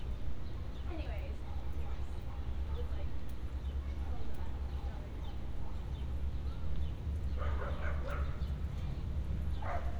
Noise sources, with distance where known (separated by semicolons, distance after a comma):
person or small group talking, near; dog barking or whining, far